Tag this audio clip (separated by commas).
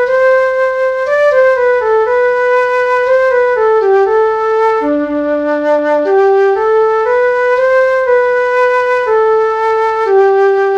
Flute, Clarinet, Music, Wind instrument